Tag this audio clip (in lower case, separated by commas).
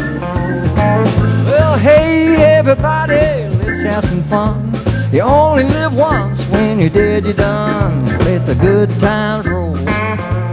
strum, plucked string instrument, musical instrument, electric guitar, music, guitar, roll